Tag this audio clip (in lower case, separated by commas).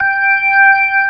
music, musical instrument, organ, keyboard (musical)